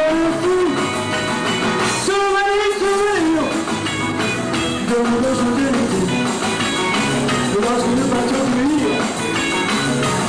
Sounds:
music, rock and roll

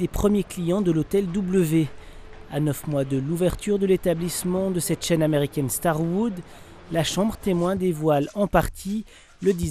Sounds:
speech

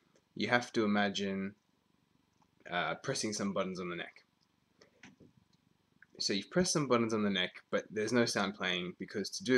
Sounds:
speech

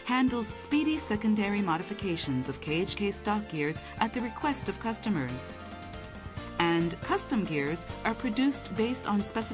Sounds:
music, speech

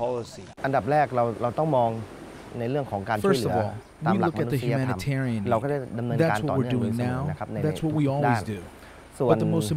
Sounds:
speech

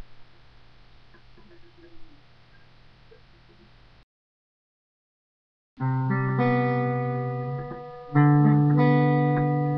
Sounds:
music

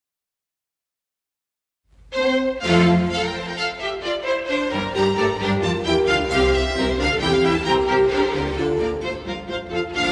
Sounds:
music, musical instrument, fiddle

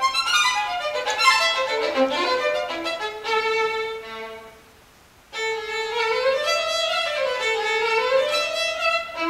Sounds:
violin, music, musical instrument

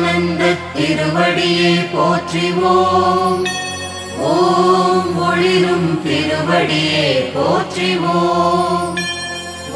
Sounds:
mantra, music

